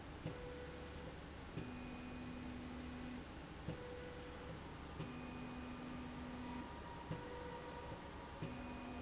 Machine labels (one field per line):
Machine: slide rail